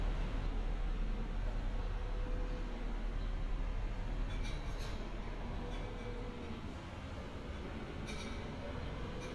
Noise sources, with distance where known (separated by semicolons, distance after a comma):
non-machinery impact